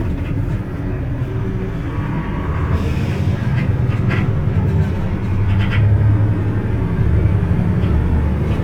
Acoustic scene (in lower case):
bus